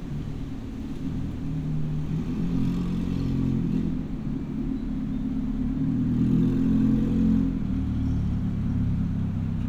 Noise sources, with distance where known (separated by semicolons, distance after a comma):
medium-sounding engine, near